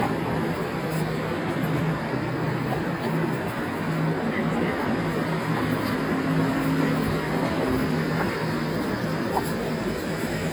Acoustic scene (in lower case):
street